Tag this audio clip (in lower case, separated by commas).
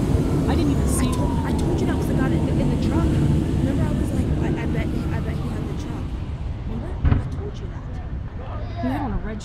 fire engine, vehicle, speech, emergency vehicle